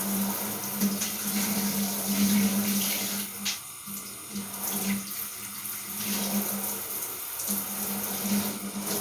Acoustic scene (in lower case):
restroom